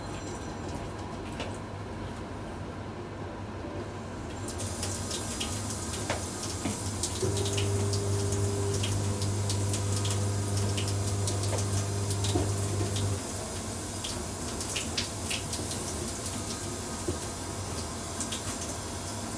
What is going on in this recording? I turned on the faucet while the microwave was running and my phone was ringing.